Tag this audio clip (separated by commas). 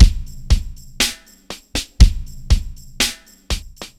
Drum, Tambourine, Music, Musical instrument, Drum kit, Percussion